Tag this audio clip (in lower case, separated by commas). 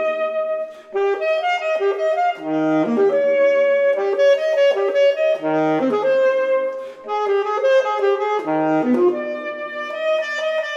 brass instrument, saxophone